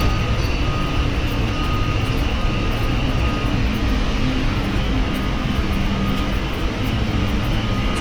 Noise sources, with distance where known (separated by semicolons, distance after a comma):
non-machinery impact; reverse beeper, far